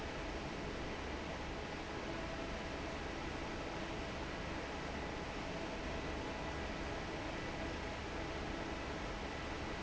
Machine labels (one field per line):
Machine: fan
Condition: normal